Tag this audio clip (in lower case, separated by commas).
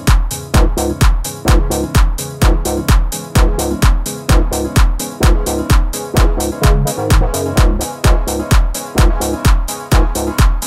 electronic music, music